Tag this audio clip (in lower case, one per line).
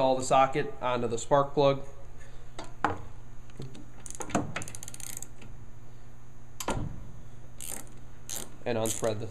speech